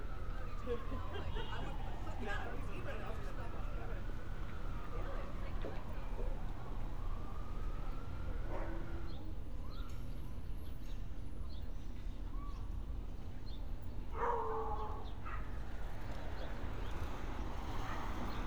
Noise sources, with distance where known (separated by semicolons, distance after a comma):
background noise